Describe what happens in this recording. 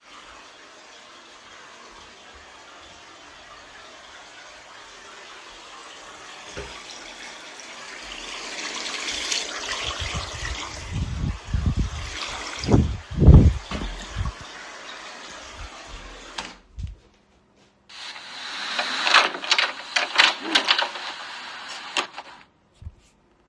I turned on the faucet to wash my hands and then opened and closed the kitchen door. The sound of running water and the door opening and closing were recorded along with some rustling of my clothes as I moved around the kitchen.